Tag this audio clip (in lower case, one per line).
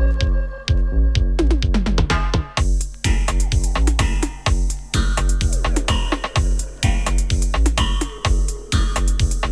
echo
music